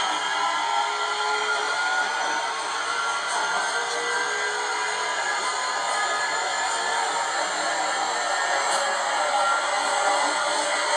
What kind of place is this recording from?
subway train